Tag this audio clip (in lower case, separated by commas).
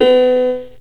keyboard (musical), musical instrument, music, piano